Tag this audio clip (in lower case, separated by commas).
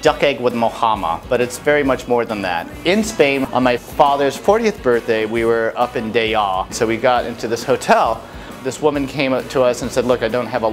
speech, music